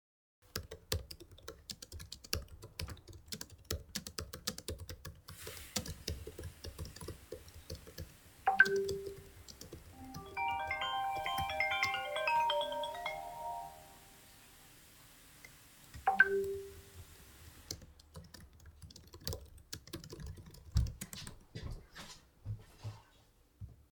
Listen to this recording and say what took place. I am working on my laptop while my roommate does dishes and I get a call, and my roommate comes back to the room